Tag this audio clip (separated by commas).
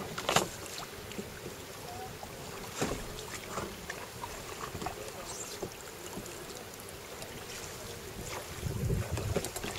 Water vehicle, Rowboat, kayak rowing